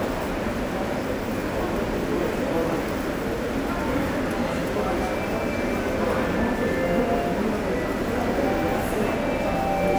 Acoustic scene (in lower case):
subway station